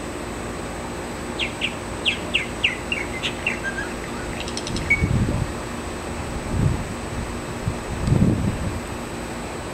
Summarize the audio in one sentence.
Birds chirping and wind noise